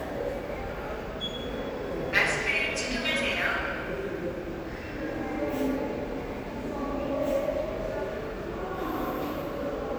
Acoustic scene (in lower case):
subway station